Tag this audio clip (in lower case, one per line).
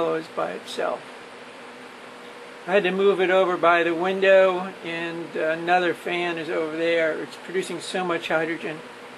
speech